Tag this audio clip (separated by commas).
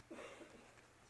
Cough, Respiratory sounds